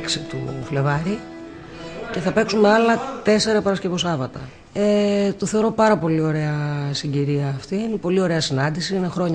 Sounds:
Speech, Music

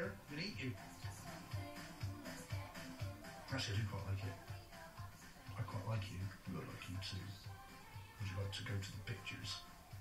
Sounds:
Music, Speech

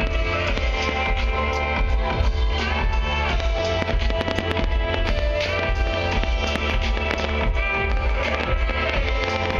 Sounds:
New-age music, Happy music, Music

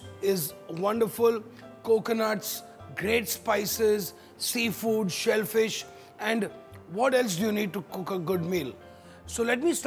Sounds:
Speech, Music

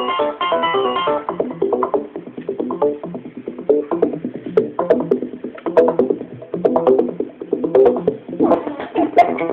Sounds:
Music, Techno

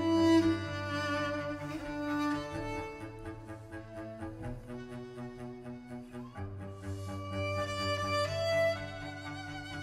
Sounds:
Musical instrument, String section, Bowed string instrument, Orchestra, Violin, Music, Double bass, Cello

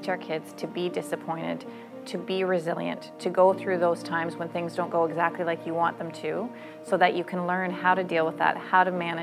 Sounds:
Music, Speech

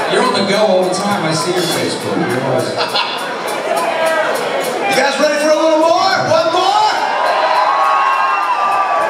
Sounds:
Speech, Whoop, Music

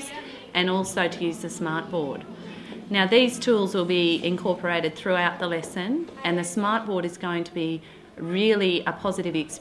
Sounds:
Speech

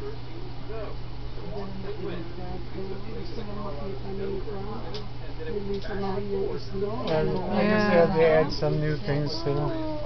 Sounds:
Speech

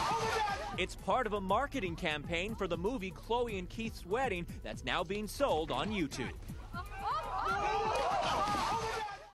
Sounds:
Music, Speech

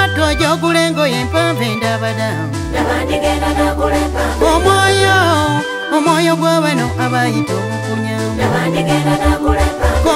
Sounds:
Music, outside, urban or man-made

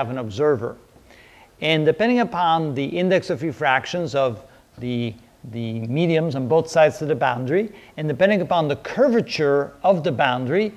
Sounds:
striking pool

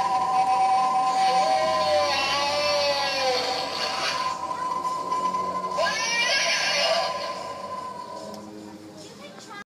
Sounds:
Music, Speech

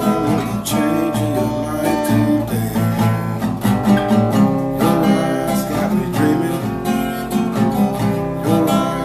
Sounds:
Guitar, Acoustic guitar, Music, Musical instrument

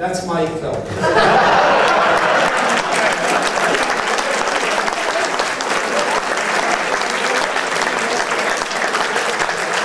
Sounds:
Male speech, Speech

